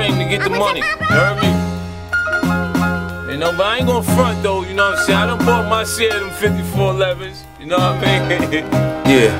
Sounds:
music

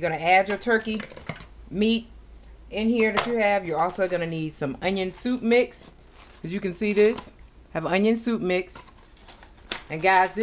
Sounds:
speech

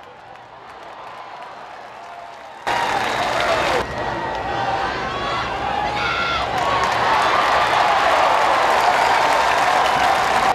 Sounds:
speech

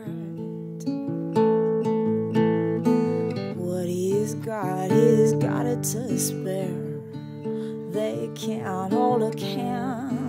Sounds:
music
independent music

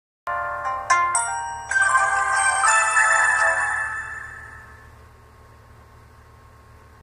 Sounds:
television
music

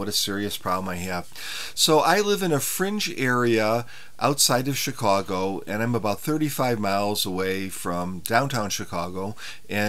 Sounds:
speech

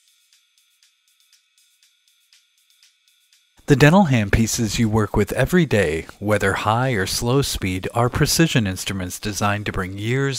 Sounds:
speech
music

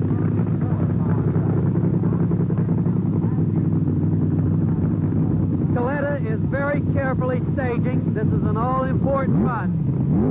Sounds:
speech
vehicle
outside, urban or man-made

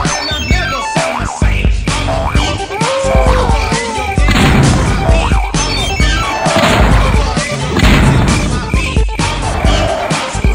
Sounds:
music

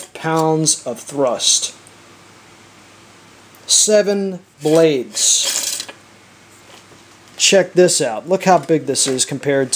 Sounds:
speech

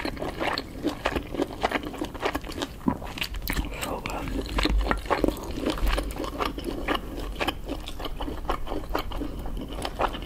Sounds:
people slurping

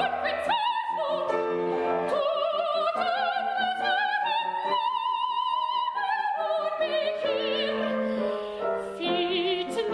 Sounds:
singing
music

